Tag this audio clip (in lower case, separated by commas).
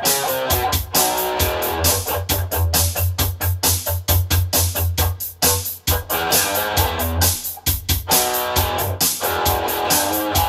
musical instrument, plucked string instrument, blues, music, guitar, strum